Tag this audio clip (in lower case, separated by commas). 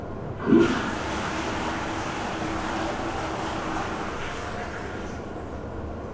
toilet flush, home sounds